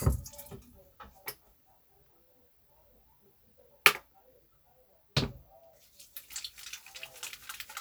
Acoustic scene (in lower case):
restroom